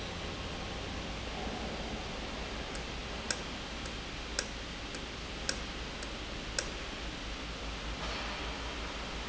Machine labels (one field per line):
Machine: valve